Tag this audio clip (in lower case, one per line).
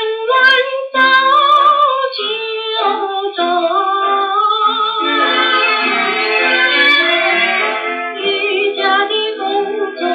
music